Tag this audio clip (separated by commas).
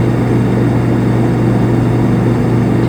Engine